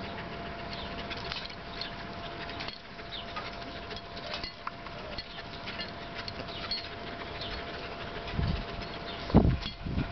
Birds are chirping and a dog is panting